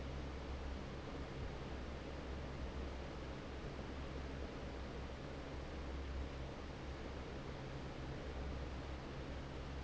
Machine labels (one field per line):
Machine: fan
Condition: normal